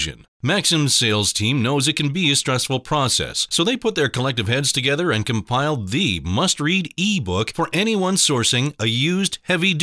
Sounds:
speech

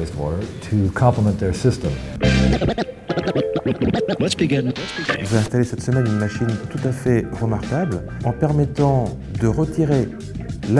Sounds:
music, speech

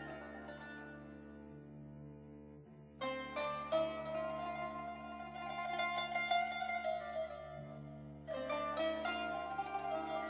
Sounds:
music

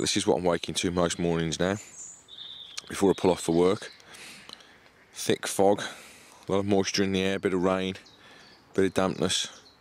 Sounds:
animal, speech

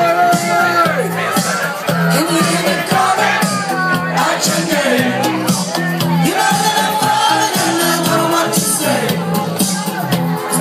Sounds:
speech, music

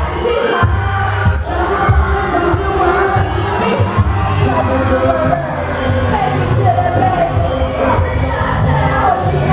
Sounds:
music, singing, inside a large room or hall, speech

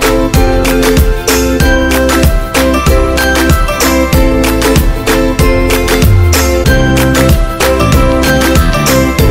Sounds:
music

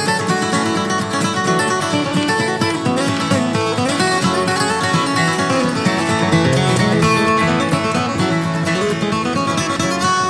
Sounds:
music

